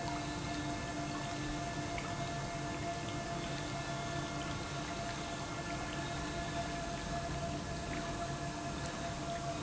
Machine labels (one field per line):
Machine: pump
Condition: normal